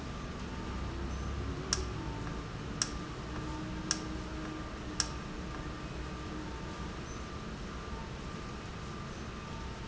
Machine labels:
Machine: valve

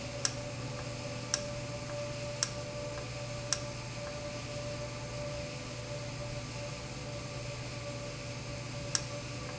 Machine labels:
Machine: valve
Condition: normal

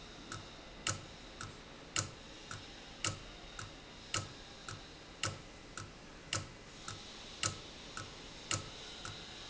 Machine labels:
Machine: valve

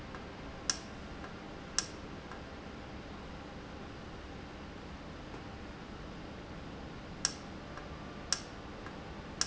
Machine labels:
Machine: valve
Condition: normal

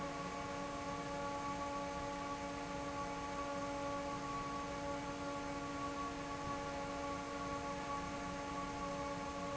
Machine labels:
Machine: fan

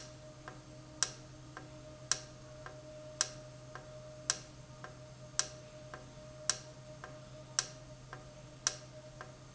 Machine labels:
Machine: valve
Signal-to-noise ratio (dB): 6 dB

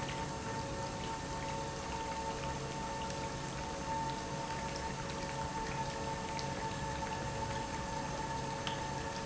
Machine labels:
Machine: pump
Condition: normal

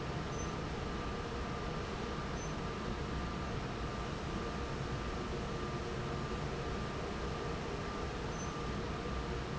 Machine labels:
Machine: fan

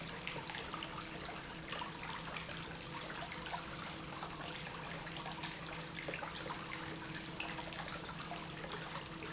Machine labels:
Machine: pump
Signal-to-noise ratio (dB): 6 dB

